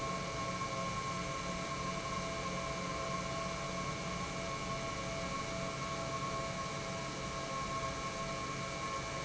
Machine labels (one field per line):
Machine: pump